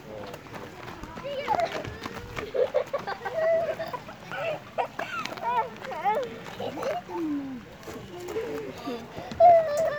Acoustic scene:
park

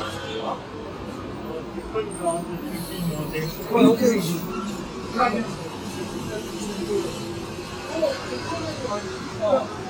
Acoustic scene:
street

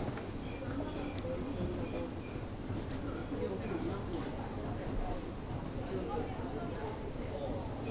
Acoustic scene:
crowded indoor space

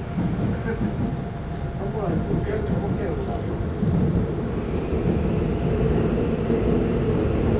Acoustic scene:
subway train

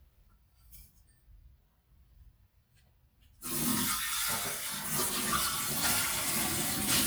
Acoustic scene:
kitchen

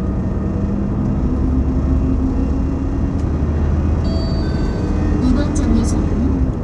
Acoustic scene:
bus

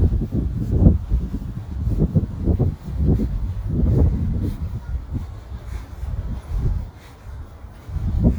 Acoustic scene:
residential area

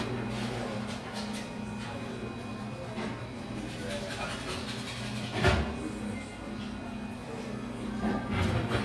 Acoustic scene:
crowded indoor space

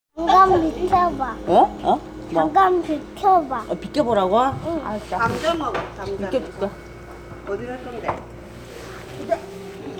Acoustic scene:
crowded indoor space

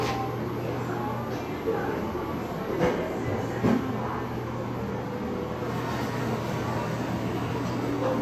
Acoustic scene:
cafe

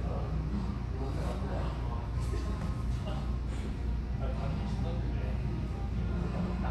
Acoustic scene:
cafe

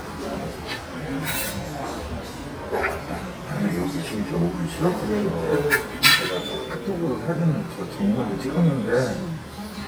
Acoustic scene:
crowded indoor space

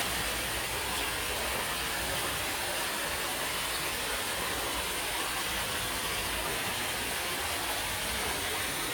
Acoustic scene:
park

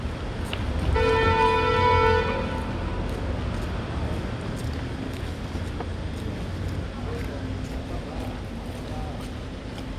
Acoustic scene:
street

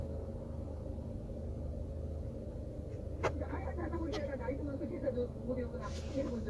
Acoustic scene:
car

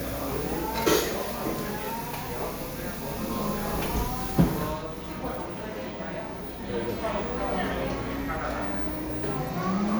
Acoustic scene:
cafe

